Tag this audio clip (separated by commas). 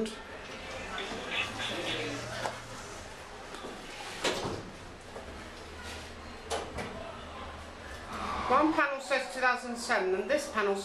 Speech